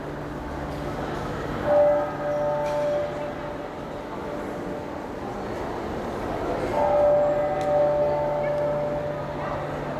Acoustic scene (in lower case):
crowded indoor space